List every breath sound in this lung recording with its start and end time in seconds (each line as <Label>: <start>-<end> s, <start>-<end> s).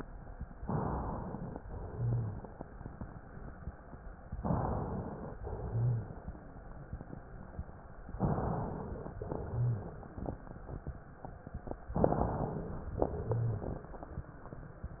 Inhalation: 0.60-1.58 s, 4.38-5.32 s, 8.18-9.12 s, 11.96-12.94 s
Exhalation: 1.62-4.28 s, 5.40-8.12 s, 9.20-11.92 s, 12.98-15.00 s
Rhonchi: 1.92-2.38 s, 5.62-6.08 s, 9.50-9.96 s, 13.32-13.78 s